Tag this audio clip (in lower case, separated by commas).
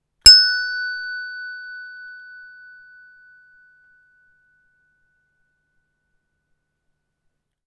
bell